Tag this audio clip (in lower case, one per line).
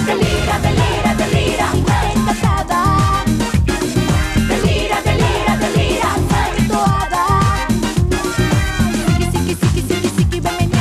music